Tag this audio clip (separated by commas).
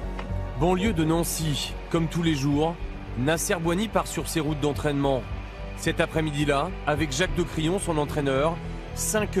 Speech, Music